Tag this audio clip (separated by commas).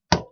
home sounds, Tap, Door